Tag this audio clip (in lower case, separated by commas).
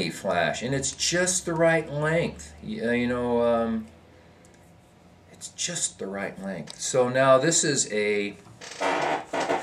speech